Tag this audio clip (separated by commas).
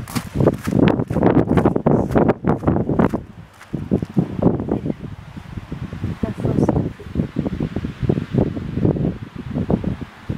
Speech